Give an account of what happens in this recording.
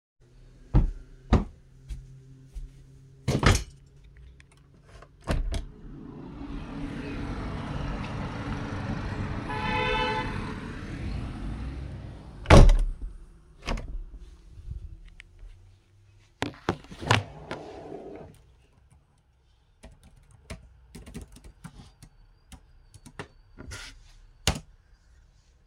I opened my window to check the weather; closed it; sat back down and resumed my essay